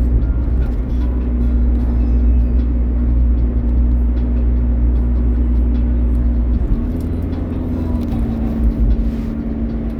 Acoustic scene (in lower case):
car